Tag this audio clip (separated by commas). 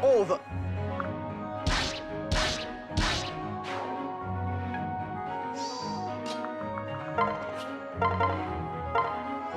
Speech, Music